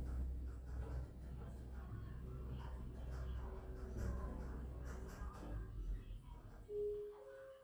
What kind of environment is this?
elevator